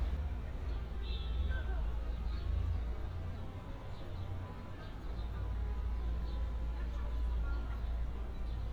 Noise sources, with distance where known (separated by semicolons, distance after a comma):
car horn; music from an unclear source, far